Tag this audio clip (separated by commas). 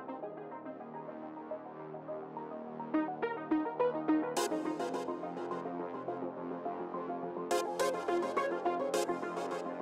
Music